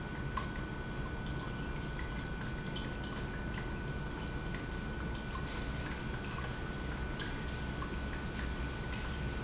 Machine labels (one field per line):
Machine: pump